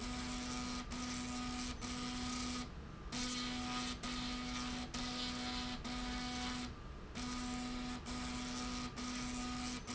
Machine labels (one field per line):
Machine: slide rail